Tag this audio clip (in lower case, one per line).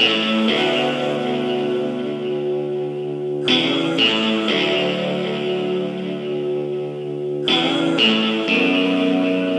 music